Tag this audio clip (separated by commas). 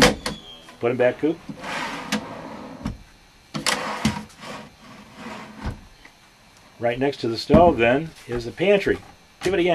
Speech